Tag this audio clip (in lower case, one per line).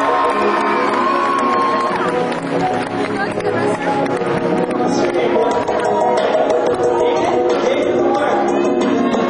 speech
music